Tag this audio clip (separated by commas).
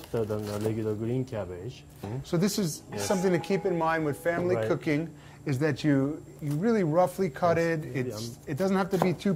Speech